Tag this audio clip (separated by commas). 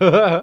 Laughter, Human voice